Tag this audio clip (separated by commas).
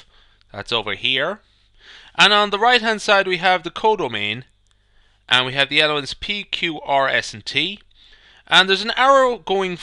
Speech